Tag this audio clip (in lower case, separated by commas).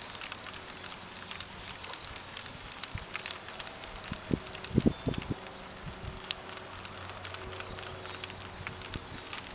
wind